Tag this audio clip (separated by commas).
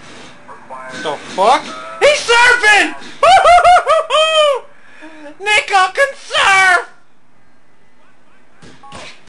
Speech